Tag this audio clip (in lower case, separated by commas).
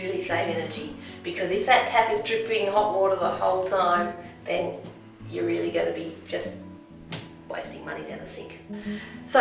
music, speech